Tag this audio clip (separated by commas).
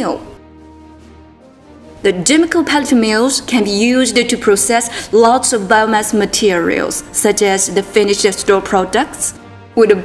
Speech, Music